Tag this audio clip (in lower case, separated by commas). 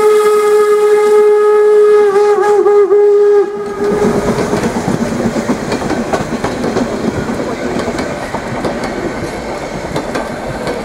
train whistling